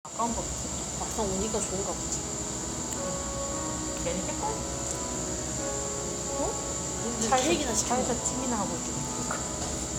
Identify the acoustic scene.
cafe